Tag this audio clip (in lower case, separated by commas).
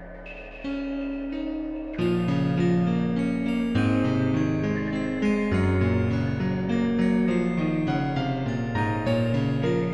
music, raindrop